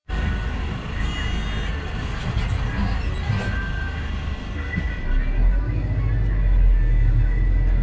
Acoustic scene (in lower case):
bus